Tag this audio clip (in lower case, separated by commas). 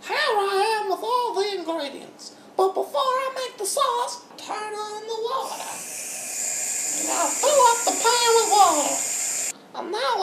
speech